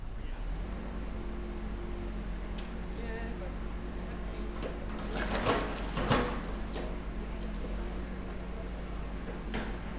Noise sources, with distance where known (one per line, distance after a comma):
person or small group talking, near